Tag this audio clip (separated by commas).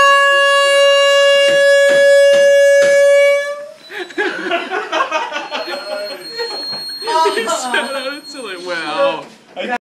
car horn, Air horn, Speech, inside a small room